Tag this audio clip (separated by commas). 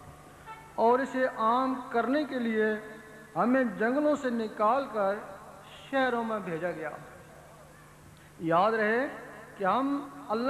Speech, monologue, man speaking